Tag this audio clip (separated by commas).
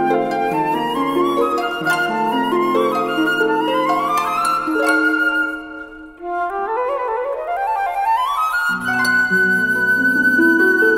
Classical music, Plucked string instrument, playing flute, Music, Flute, woodwind instrument, Musical instrument